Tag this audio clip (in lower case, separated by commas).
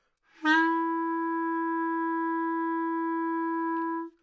wind instrument, music, musical instrument